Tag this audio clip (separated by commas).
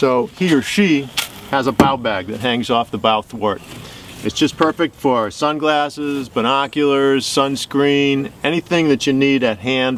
Speech